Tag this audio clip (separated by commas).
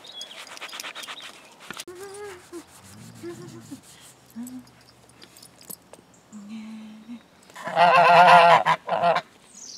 Animal, outside, rural or natural